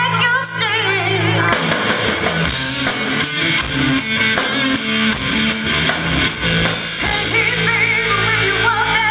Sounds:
Music

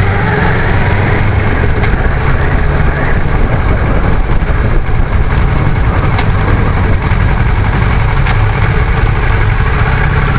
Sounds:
Vehicle, Idling, Motorcycle

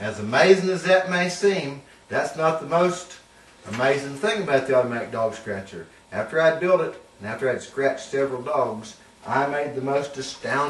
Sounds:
Speech

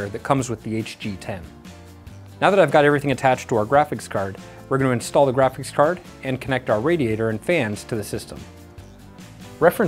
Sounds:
Speech, Music

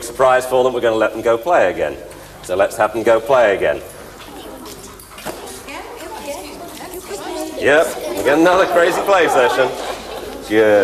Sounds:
Speech

